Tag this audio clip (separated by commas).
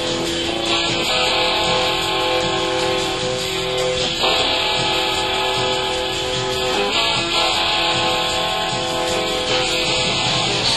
Music